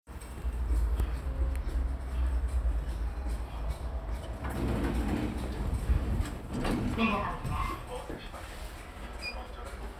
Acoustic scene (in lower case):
elevator